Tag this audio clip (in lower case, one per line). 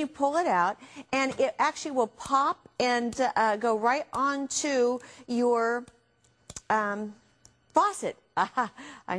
speech